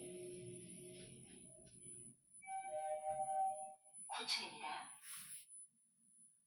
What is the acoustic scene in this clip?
elevator